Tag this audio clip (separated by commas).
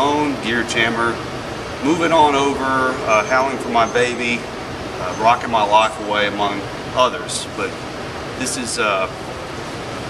Speech